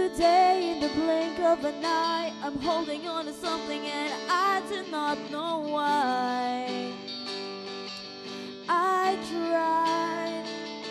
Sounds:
music

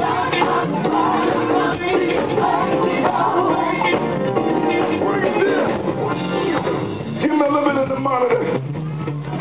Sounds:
speech
music

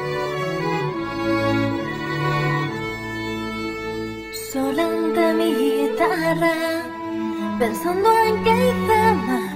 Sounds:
music
sad music

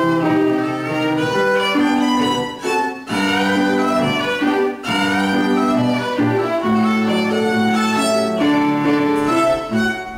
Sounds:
music
violin
musical instrument

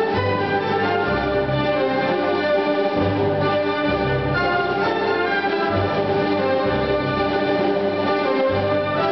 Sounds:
music
orchestra

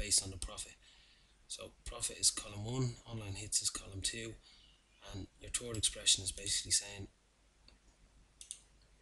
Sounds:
clicking

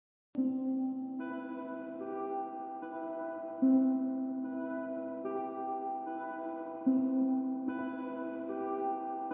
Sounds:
music

